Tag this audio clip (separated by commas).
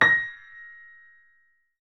Piano, Music, Keyboard (musical), Musical instrument